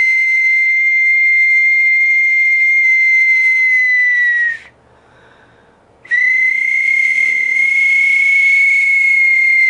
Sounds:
people whistling, Whistling

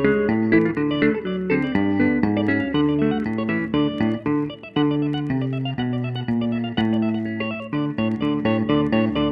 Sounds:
tapping guitar

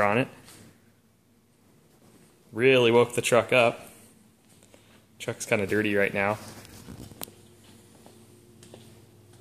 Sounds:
Speech

